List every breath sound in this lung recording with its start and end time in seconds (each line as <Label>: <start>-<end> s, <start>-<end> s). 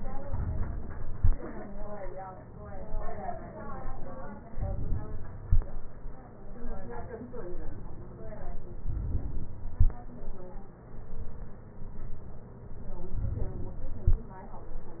Inhalation: 4.49-5.41 s, 8.82-9.74 s, 13.07-13.99 s